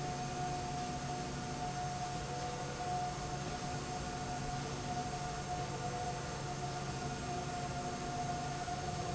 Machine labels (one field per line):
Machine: slide rail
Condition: normal